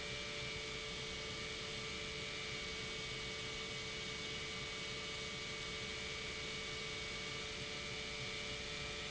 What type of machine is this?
pump